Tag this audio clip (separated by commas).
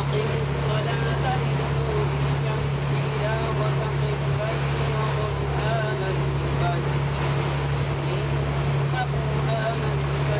Wind, Water vehicle, Motorboat, Wind noise (microphone), surf